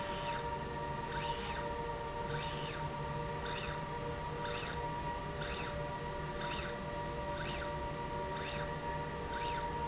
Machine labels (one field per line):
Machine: slide rail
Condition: normal